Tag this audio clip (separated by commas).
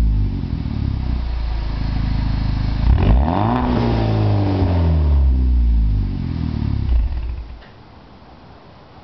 Speech